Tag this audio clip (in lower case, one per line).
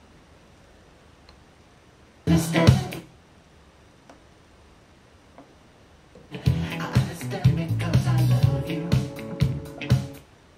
music